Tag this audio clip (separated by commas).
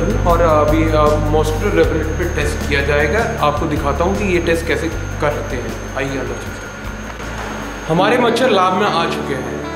Music, Speech